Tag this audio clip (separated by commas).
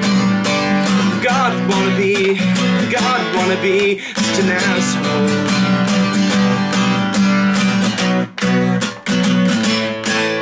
Music